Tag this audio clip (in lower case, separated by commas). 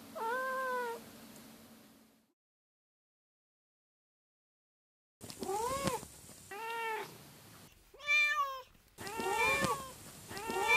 cat caterwauling